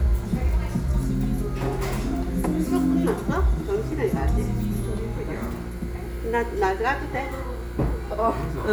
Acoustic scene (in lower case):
restaurant